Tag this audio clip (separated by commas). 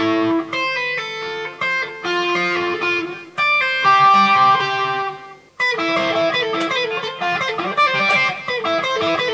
Musical instrument, Plucked string instrument, Electric guitar, playing electric guitar, Music, Guitar